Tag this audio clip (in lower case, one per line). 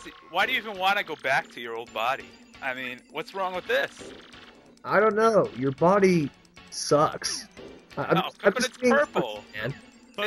speech
music